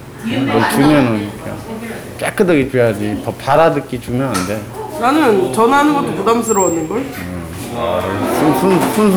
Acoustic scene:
crowded indoor space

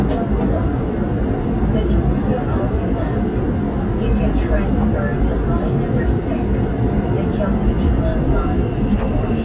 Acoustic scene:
subway train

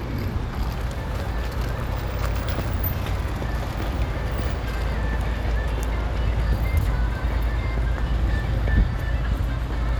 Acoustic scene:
street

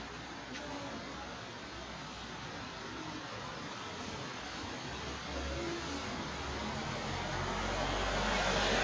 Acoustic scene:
residential area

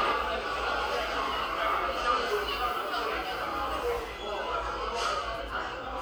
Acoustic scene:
cafe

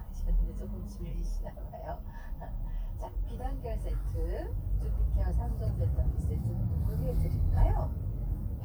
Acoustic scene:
car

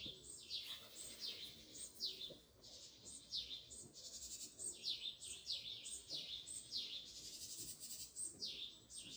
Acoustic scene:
park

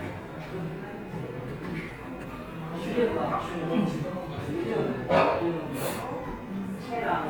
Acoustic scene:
cafe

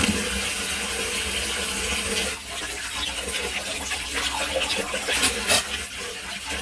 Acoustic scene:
kitchen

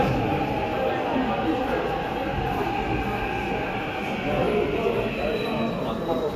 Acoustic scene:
subway station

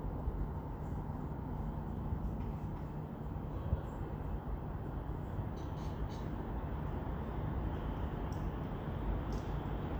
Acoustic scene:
residential area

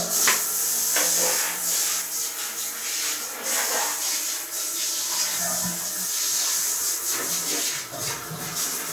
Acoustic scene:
restroom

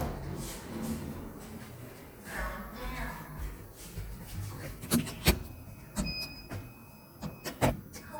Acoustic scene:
elevator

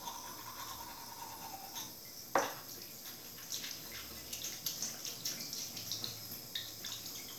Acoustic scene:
restroom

